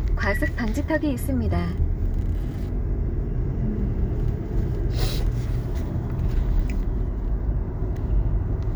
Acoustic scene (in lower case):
car